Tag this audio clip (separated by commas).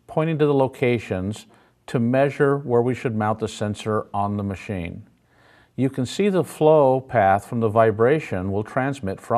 Speech